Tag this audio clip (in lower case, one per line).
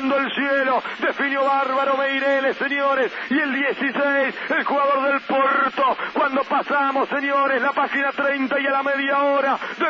radio